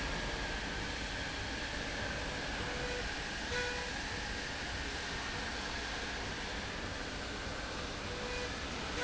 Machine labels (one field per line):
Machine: slide rail